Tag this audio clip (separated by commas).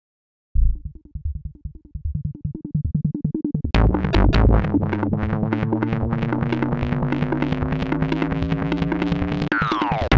Music